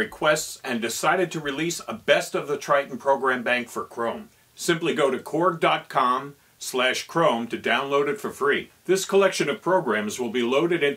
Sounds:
Speech

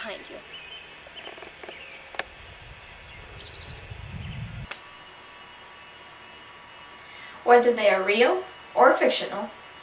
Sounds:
inside a small room, Silence, outside, rural or natural, Speech

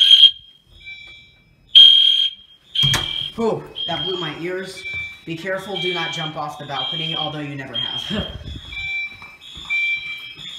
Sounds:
Speech, Fire alarm

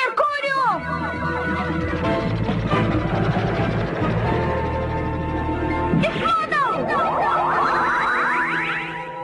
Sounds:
Speech, Music

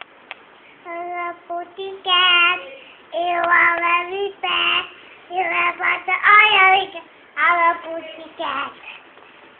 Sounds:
Speech

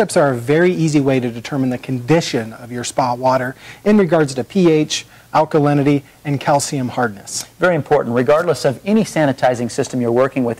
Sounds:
Speech

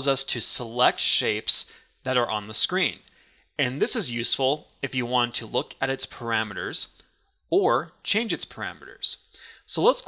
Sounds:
Speech

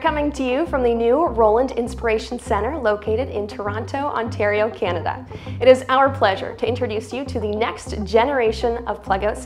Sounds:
Speech, Music

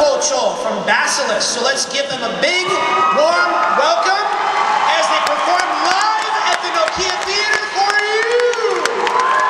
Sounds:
Speech

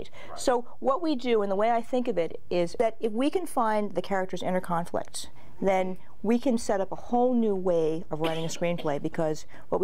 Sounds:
Speech

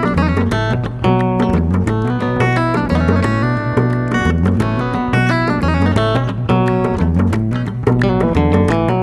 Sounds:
Music

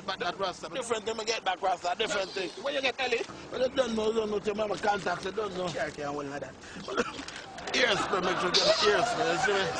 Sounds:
Speech

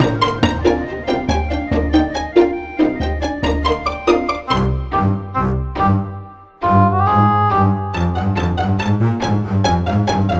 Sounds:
Soundtrack music, Music

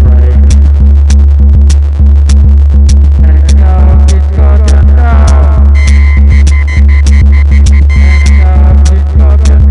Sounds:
Music, Throbbing

